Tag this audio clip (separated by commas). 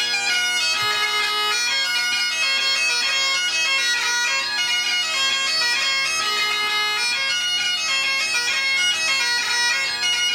Bagpipes, Music, Wind instrument, Musical instrument